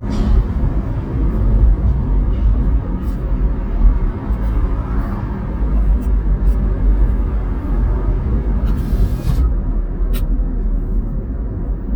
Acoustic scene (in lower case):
car